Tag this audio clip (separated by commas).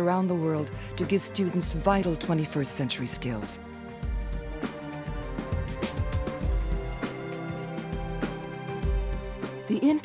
Speech, Music